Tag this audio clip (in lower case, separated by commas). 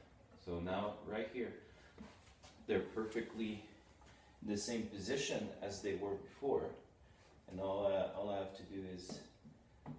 inside a small room, speech